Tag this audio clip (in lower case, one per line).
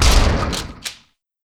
gunfire
explosion